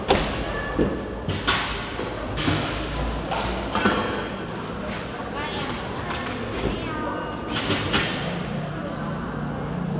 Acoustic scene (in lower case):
cafe